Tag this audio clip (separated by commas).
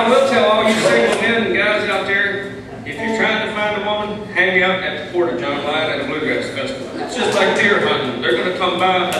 Speech